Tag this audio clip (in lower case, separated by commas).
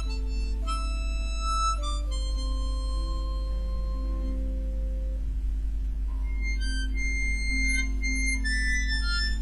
music, harmonica